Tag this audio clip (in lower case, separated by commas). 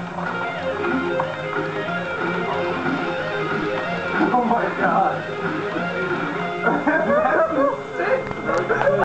music, musical instrument, speech